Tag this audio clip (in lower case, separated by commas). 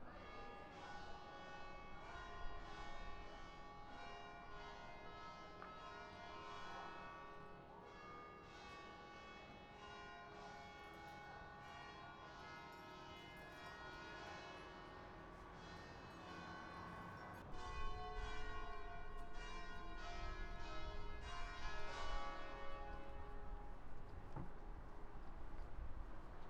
bell, church bell